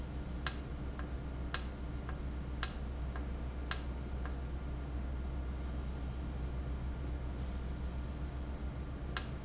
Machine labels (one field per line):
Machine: valve